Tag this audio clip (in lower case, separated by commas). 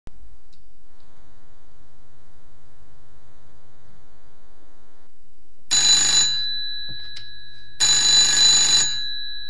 telephone, telephone bell ringing